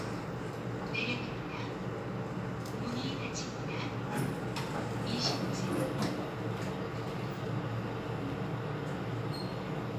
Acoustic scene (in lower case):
elevator